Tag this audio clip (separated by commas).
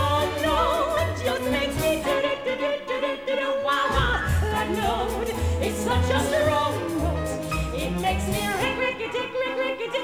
Music, Orchestra, Choir